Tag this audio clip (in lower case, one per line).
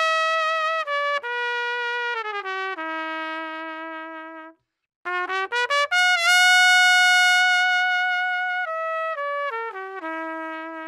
playing cornet